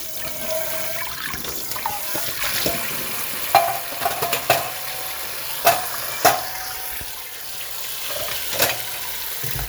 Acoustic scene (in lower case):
kitchen